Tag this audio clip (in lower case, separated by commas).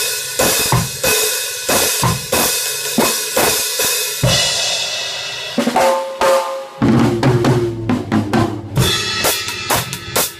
cymbal, hi-hat, drum, musical instrument, drum kit, music, bass drum, snare drum